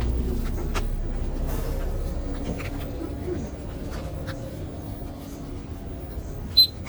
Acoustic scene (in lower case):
bus